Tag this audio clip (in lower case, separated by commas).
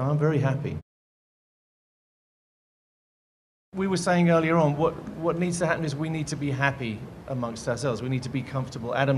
speech